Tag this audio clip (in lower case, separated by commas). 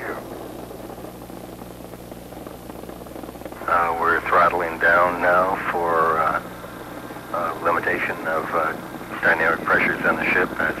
vehicle, speech